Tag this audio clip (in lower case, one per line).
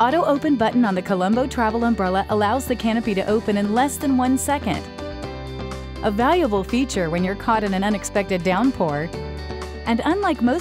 speech
music